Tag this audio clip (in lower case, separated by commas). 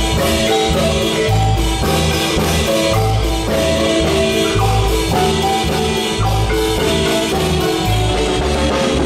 marimba, music